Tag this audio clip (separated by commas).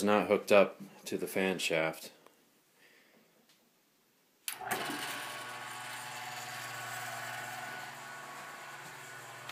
Mechanical fan, Speech, inside a small room